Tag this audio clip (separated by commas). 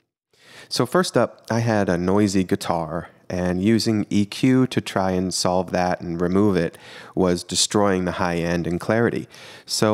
Speech